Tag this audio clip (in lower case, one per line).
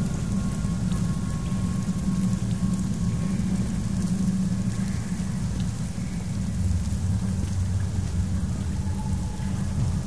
music